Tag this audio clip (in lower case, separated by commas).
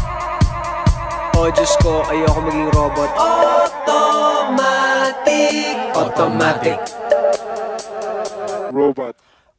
music, speech